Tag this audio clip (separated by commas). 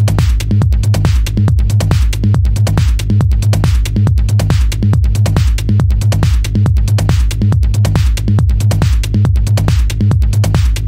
Music